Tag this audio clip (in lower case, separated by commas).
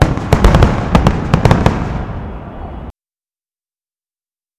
explosion, fireworks